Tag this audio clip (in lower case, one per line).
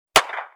clapping
hands